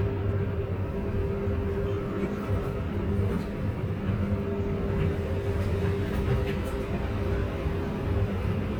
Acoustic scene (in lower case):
bus